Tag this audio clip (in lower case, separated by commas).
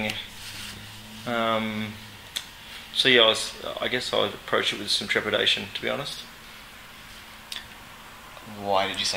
speech